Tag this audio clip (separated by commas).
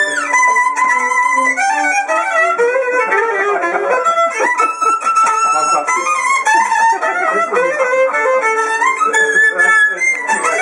Violin, Musical instrument, fiddle, Speech, Pizzicato, Music